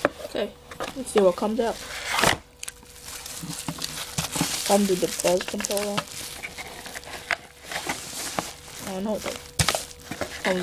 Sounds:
Speech

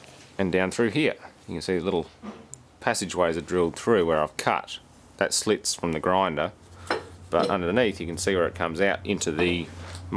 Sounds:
inside a small room, Speech

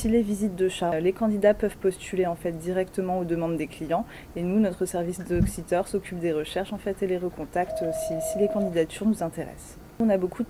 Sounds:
Speech

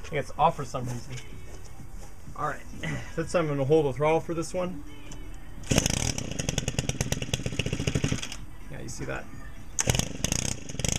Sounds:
Tools, Power tool

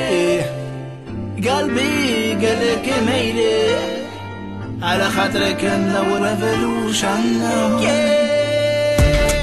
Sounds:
Music

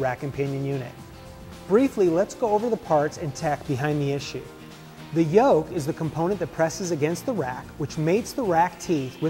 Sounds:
Music, Speech

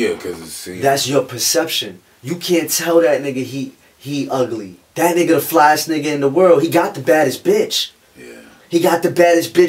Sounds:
Speech, Male speech, Conversation

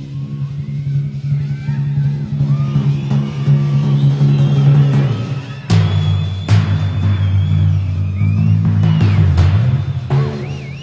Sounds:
playing tympani

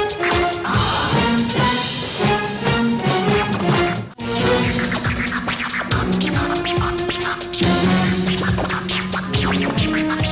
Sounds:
Orchestra

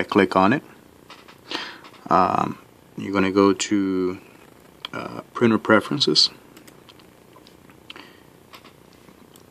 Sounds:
Speech

